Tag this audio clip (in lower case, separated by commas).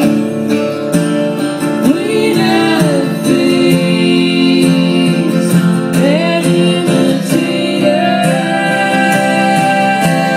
music, strum, plucked string instrument, musical instrument, guitar